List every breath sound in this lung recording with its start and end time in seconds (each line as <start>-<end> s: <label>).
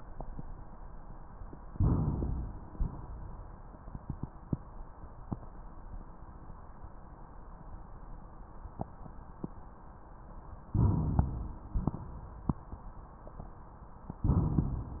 1.72-2.59 s: inhalation
2.66-3.65 s: exhalation
10.72-11.54 s: rhonchi
10.75-11.66 s: inhalation
11.72-12.69 s: exhalation